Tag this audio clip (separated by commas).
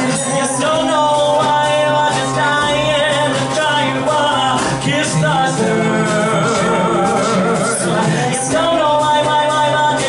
inside a large room or hall, Music, Singing, Male singing